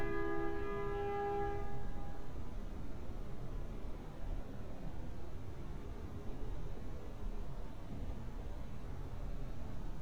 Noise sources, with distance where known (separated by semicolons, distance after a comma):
background noise